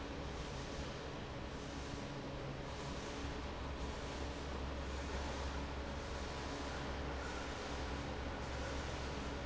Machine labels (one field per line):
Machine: fan